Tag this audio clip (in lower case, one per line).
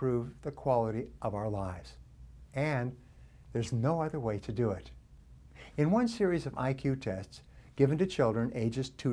speech